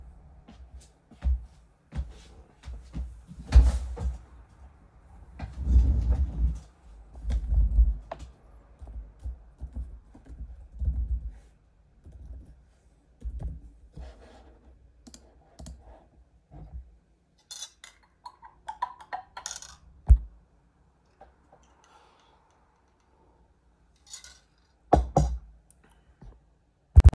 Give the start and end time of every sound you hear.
0.3s-3.2s: footsteps
8.8s-13.7s: keyboard typing
17.4s-20.1s: cutlery and dishes
24.1s-25.4s: cutlery and dishes

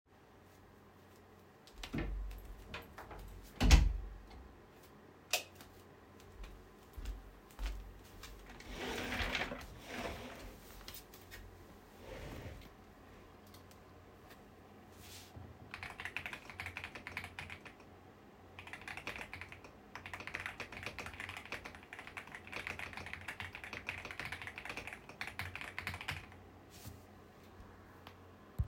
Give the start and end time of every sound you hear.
1.8s-4.0s: door
5.3s-5.5s: light switch
5.5s-8.6s: footsteps
15.7s-26.4s: keyboard typing

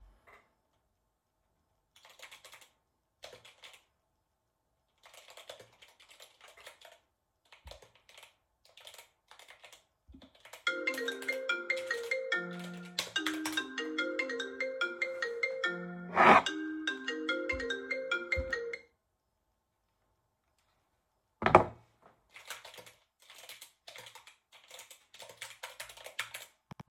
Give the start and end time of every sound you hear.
2.0s-2.8s: keyboard typing
3.1s-3.8s: keyboard typing
5.1s-5.6s: keyboard typing
7.4s-9.8s: keyboard typing
10.4s-13.6s: keyboard typing
10.5s-18.9s: phone ringing
22.4s-26.7s: keyboard typing

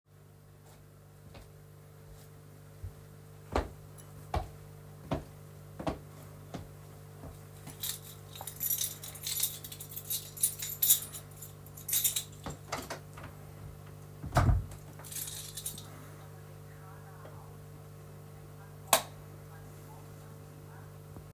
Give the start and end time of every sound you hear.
3.5s-7.5s: footsteps
7.7s-12.4s: keys
12.5s-14.8s: door
15.0s-15.9s: keys
18.9s-19.1s: light switch

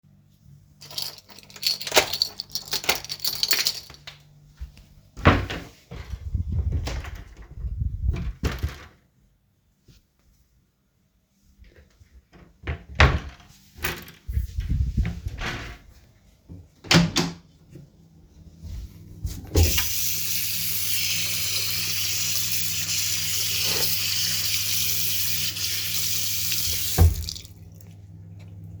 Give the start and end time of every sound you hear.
0.8s-4.2s: keys
5.2s-8.9s: wardrobe or drawer
12.6s-14.1s: wardrobe or drawer
16.8s-17.4s: door
19.5s-27.1s: running water

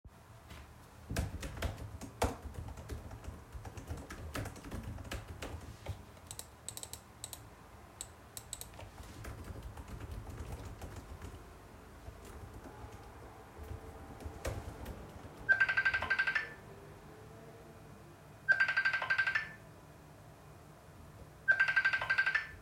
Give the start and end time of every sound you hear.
1.0s-6.3s: keyboard typing
9.1s-15.3s: keyboard typing
15.4s-16.8s: phone ringing
18.3s-19.6s: phone ringing
21.4s-22.6s: phone ringing

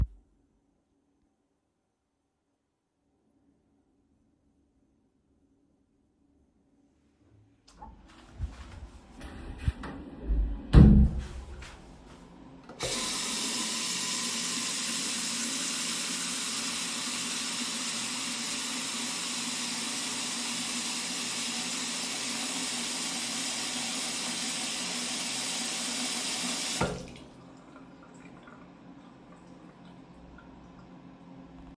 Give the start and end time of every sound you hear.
8.0s-11.8s: footsteps
10.6s-11.3s: door
12.7s-31.2s: running water

